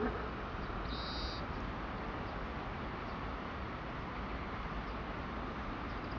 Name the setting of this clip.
park